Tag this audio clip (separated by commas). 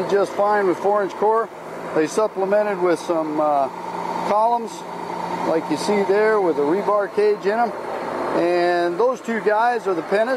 Speech